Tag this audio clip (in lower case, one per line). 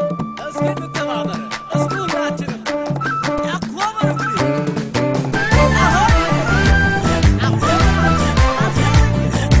music of africa
music